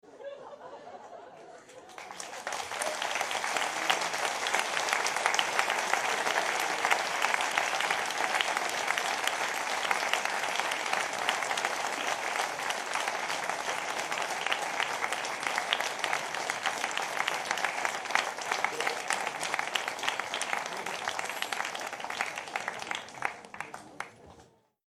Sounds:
applause, human group actions

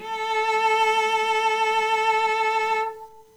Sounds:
bowed string instrument, musical instrument, music

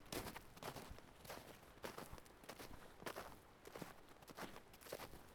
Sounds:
walk

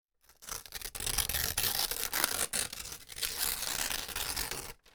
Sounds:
tearing

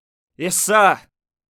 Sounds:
human voice, speech, male speech

